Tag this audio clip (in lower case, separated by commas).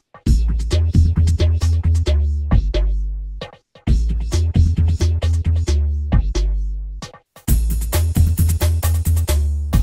music, electronic music, inside a small room, drum and bass